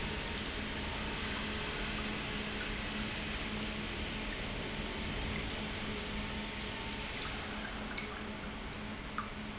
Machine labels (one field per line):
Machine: pump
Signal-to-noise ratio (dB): -6 dB